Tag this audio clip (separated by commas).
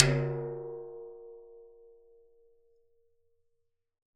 Musical instrument, Percussion, Drum, Music